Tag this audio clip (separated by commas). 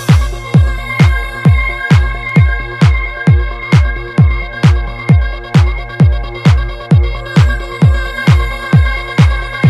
Music